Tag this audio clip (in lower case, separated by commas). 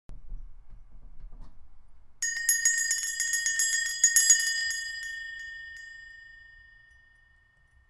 bell